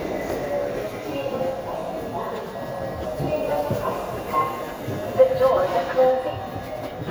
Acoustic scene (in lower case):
subway station